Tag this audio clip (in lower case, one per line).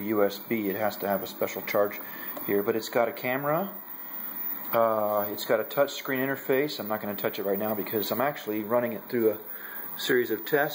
speech